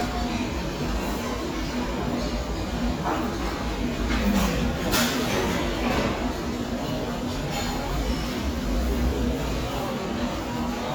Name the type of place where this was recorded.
restaurant